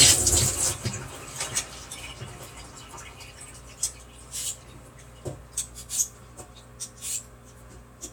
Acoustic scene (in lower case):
kitchen